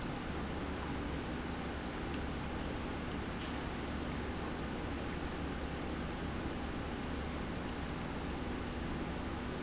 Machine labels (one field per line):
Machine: pump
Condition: normal